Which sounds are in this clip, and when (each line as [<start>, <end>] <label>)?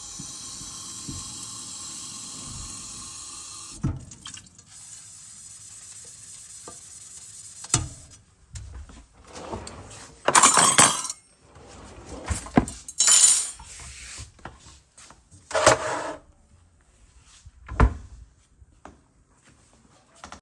[0.00, 3.89] running water
[4.79, 7.67] running water
[10.22, 11.16] cutlery and dishes
[11.76, 12.62] wardrobe or drawer
[12.94, 14.24] cutlery and dishes
[15.53, 16.20] cutlery and dishes
[17.62, 18.24] wardrobe or drawer